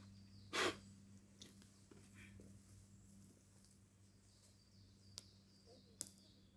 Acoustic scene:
park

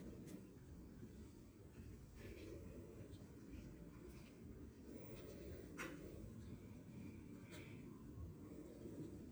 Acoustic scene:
park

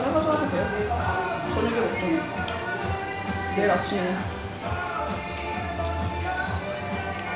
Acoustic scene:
restaurant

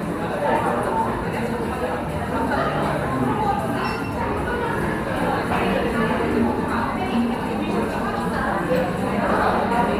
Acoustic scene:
cafe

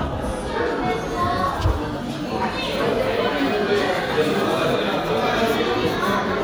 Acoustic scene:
crowded indoor space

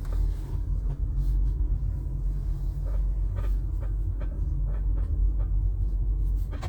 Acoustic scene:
car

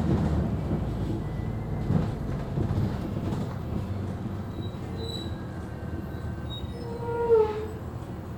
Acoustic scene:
bus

